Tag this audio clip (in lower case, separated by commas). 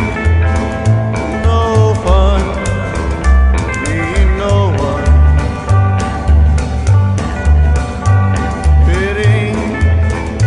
music